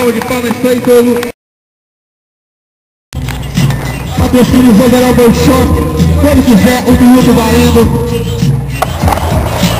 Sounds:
skateboard, music, speech

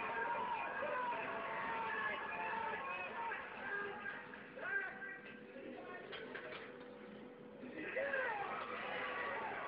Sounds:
speech

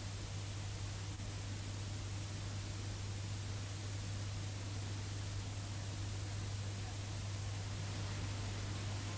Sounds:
music

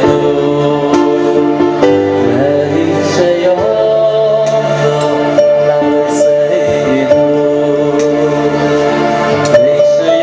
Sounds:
music, male singing

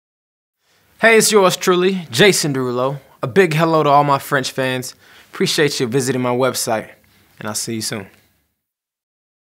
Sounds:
speech

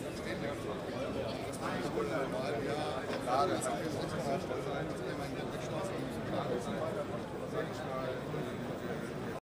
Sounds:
speech

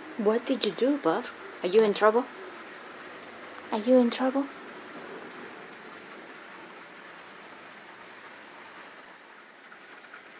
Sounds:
speech

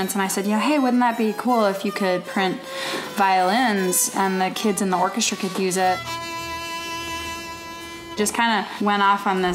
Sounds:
speech, violin, music, musical instrument

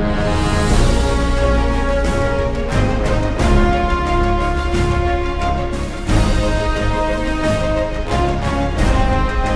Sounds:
music

